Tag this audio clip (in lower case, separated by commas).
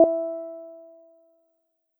piano, musical instrument, keyboard (musical), music